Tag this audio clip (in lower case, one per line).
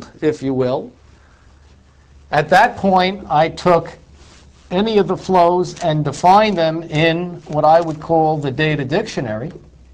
speech